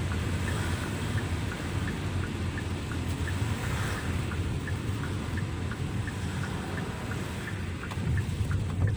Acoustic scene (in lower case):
car